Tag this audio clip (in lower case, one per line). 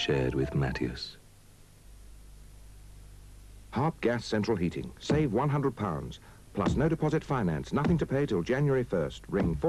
speech